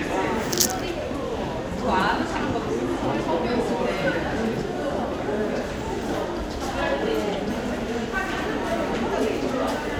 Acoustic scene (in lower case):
crowded indoor space